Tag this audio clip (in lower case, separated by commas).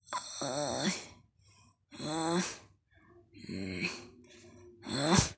breathing, respiratory sounds